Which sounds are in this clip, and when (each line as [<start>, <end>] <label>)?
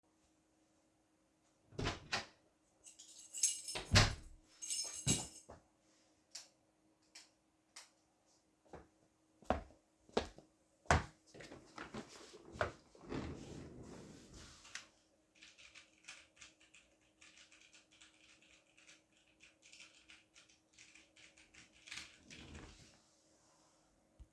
[1.74, 2.33] door
[2.79, 5.58] keys
[3.86, 4.21] door
[6.32, 7.90] light switch
[8.64, 11.18] footsteps
[12.53, 12.77] footsteps
[14.74, 22.79] keyboard typing